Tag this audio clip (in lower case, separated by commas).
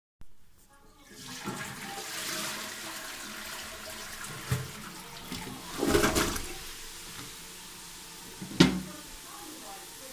toilet flush, water, tap, gurgling, human group actions, home sounds, chatter